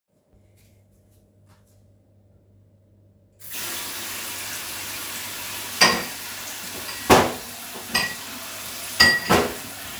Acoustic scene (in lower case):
kitchen